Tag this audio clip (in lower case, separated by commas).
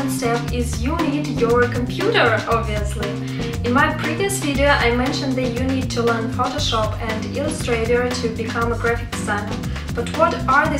music, speech